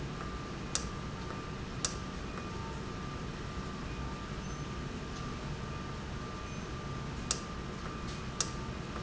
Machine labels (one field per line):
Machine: valve